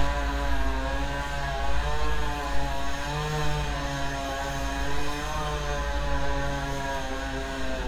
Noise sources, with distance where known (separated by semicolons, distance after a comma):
unidentified powered saw, near